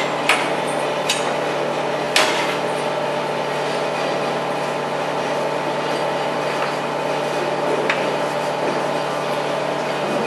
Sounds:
inside a large room or hall

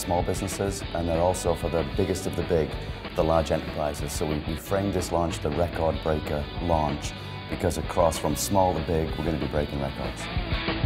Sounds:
Music, Speech

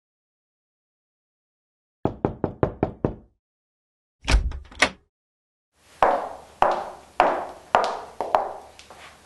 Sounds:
Knock

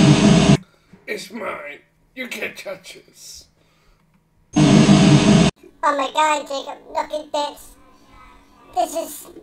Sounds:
Speech

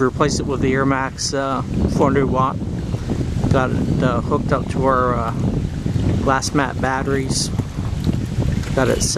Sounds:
Speech, Wind noise (microphone)

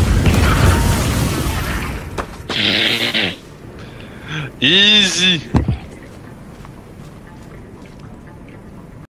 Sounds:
Music, Speech

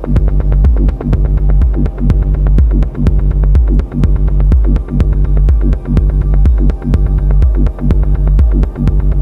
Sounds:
Music

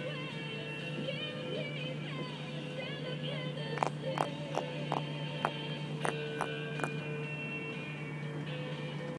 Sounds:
Music

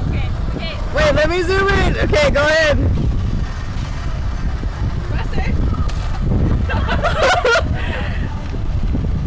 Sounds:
Speech, Car passing by

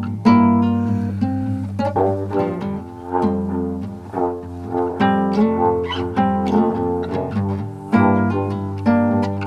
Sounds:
inside a large room or hall, Music

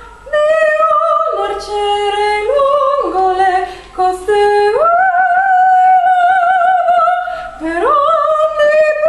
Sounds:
Female singing

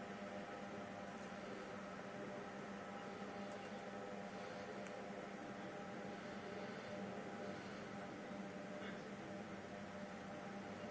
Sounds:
Vehicle

